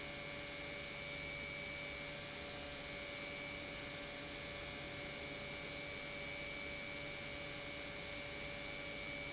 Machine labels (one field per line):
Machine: pump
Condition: normal